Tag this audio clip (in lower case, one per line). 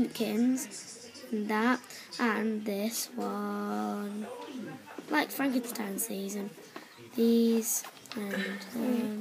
speech